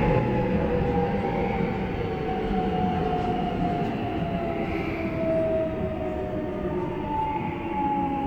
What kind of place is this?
subway train